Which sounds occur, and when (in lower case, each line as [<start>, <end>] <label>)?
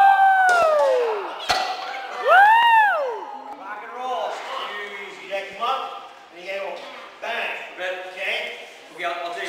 [0.00, 9.45] background noise
[1.45, 1.85] thud
[2.17, 3.16] whoop
[3.12, 3.54] kid speaking
[3.57, 9.45] conversation
[8.98, 9.45] man speaking